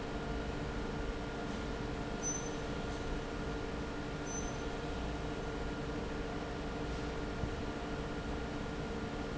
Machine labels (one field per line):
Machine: fan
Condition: normal